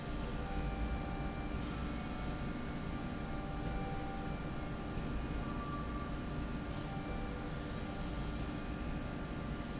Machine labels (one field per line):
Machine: slide rail